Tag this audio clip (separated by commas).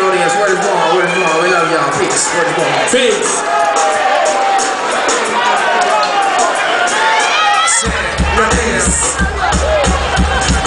Speech, Music